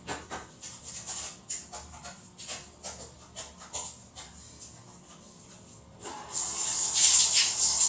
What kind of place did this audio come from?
restroom